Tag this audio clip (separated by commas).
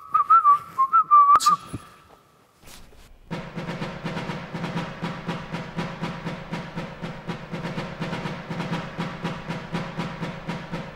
Music